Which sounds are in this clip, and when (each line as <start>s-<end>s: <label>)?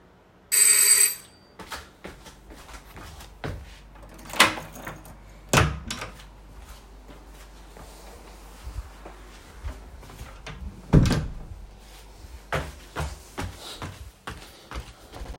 0.5s-1.4s: bell ringing
1.6s-3.9s: footsteps
4.2s-6.3s: door
6.5s-10.7s: footsteps
10.8s-11.7s: door
12.4s-15.4s: footsteps